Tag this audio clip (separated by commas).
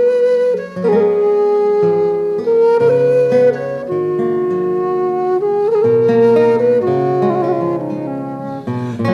Music, Classical music, playing flute, Plucked string instrument, Musical instrument, Flute